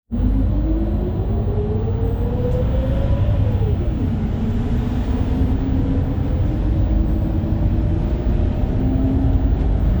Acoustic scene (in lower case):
bus